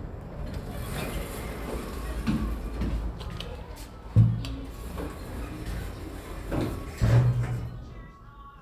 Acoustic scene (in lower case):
elevator